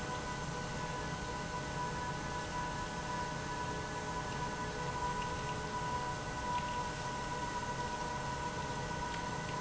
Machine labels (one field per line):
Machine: pump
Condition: abnormal